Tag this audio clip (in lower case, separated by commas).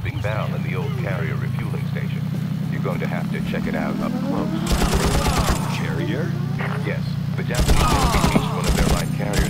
outside, rural or natural, speech